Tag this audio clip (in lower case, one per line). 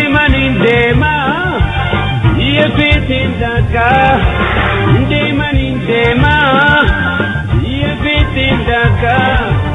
music